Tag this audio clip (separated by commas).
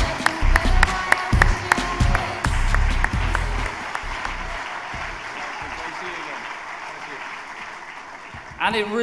man speaking, Speech, Music